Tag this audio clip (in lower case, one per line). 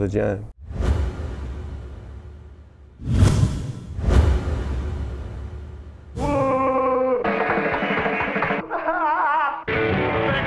speech
music
rock and roll